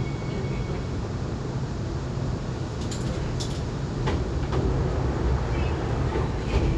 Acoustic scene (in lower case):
subway train